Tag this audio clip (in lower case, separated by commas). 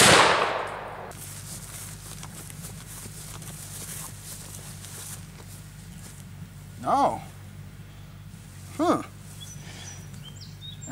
speech, outside, rural or natural